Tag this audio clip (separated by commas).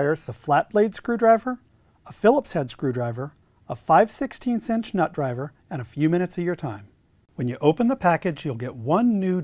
Speech